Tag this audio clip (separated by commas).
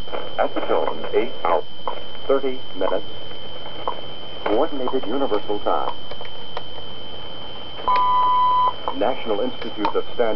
Radio, Speech